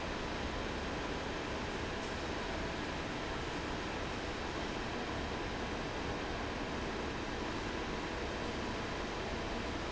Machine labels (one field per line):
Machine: fan